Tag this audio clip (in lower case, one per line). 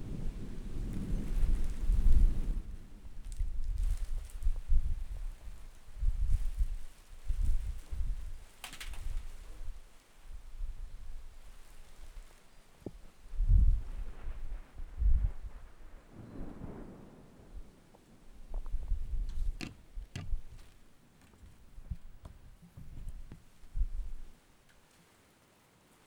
thunderstorm
rain
thunder
water